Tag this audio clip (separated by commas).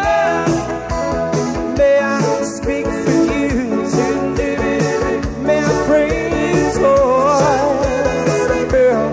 Rhythm and blues, Pop music, Music